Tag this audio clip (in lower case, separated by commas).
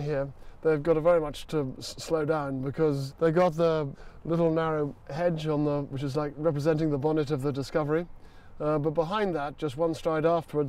speech